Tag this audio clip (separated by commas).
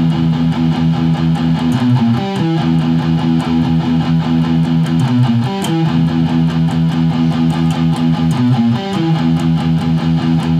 Guitar, Musical instrument, Music, Electric guitar